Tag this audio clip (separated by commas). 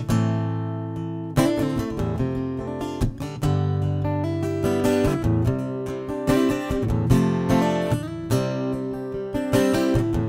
Music